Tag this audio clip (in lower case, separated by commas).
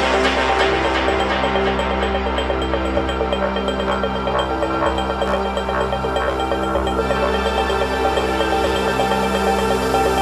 electronica, music